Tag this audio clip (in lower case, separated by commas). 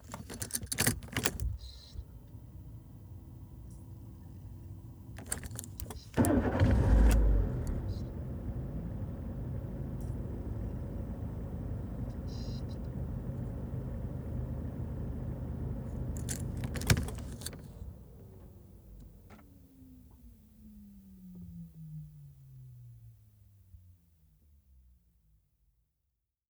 engine starting, engine